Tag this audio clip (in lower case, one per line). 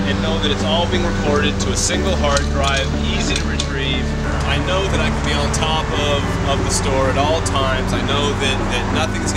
speech
vehicle
music